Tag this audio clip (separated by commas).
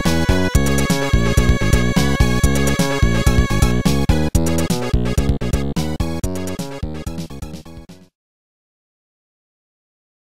Video game music, Music